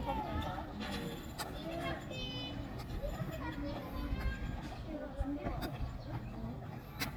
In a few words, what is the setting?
park